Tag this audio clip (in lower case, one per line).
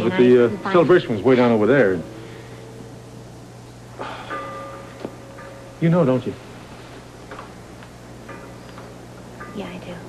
speech